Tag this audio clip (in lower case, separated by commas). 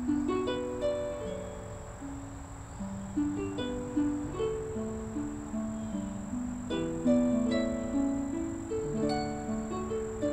music, wedding music